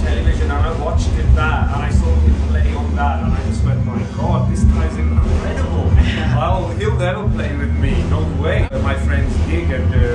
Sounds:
music
speech

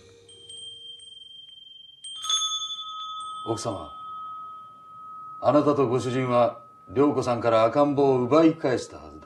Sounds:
ding-dong

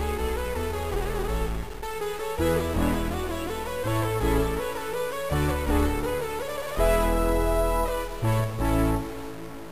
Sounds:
music

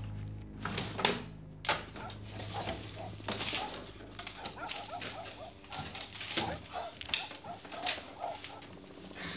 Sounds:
inside a small room

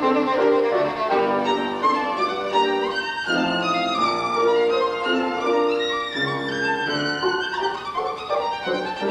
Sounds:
musical instrument
music
violin

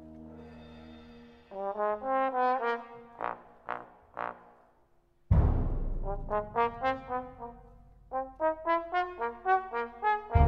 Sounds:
music
timpani
orchestra
trombone

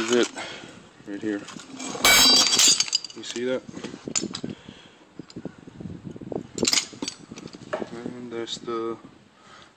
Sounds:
speech

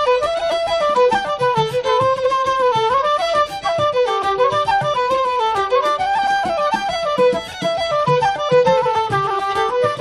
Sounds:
fiddle
music
musical instrument
flute

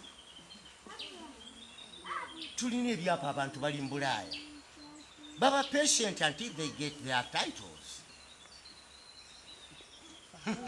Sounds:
environmental noise

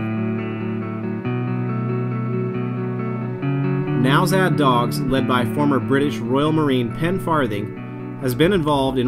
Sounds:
music
speech

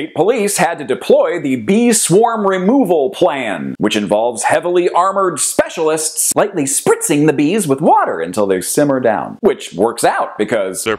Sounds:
speech

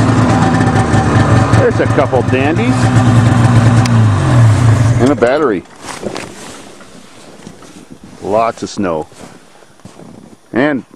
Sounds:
speech
vehicle

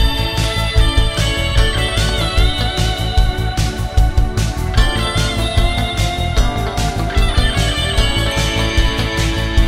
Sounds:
music

